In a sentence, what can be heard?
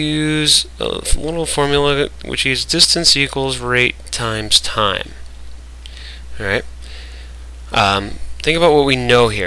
A man speaks over microphone static